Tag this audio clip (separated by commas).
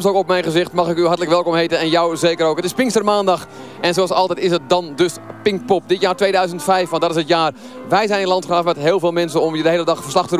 Speech